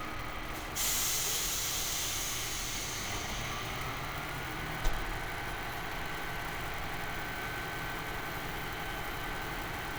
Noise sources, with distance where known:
large-sounding engine, near

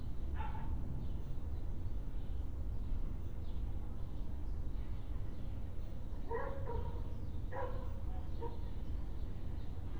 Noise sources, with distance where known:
dog barking or whining

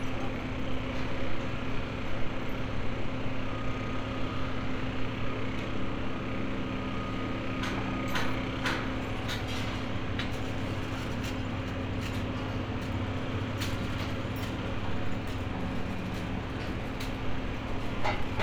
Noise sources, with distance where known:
large-sounding engine
unidentified impact machinery

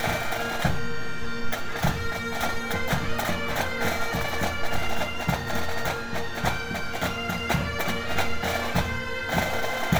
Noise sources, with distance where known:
music from a fixed source, near

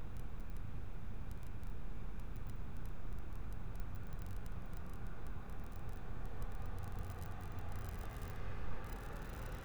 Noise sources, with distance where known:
medium-sounding engine

